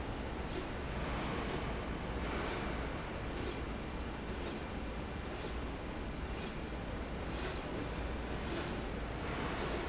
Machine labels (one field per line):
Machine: slide rail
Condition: normal